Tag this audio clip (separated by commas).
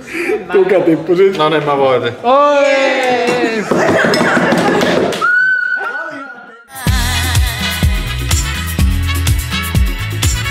Music, Speech, Laughter